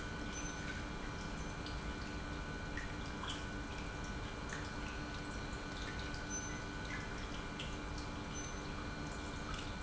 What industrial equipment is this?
pump